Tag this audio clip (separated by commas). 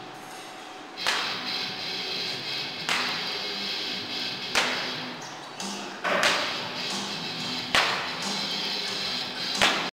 Walk, Music